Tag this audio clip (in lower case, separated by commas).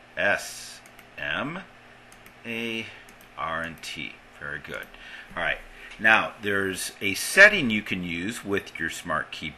male speech, speech, narration